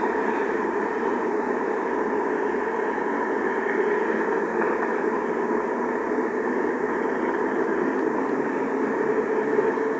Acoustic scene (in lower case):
street